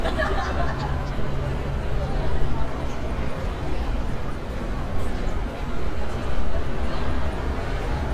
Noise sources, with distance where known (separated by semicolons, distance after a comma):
person or small group talking